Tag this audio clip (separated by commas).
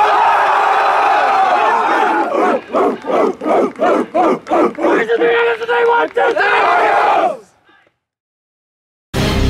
Music, Speech